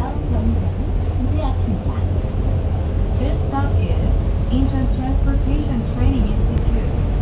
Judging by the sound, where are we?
on a bus